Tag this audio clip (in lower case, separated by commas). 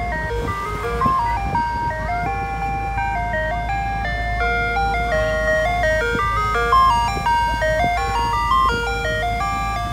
ice cream van